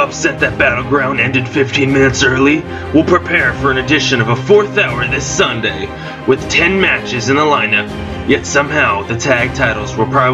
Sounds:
music
speech

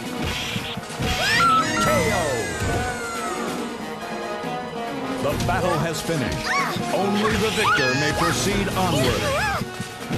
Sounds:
speech
music

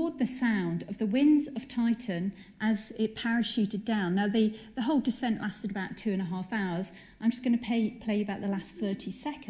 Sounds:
speech

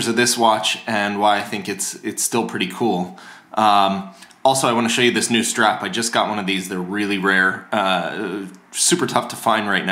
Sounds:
speech

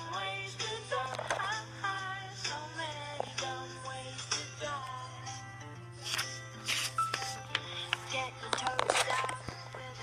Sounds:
music

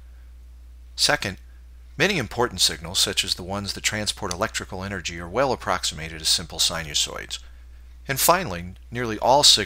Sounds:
speech
narration

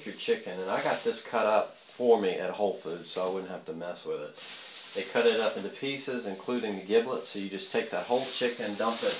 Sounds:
speech

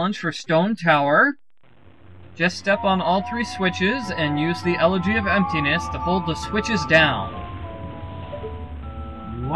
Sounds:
narration

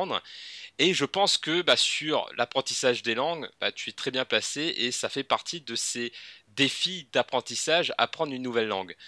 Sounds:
speech

